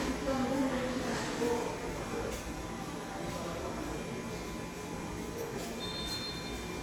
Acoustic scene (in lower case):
subway station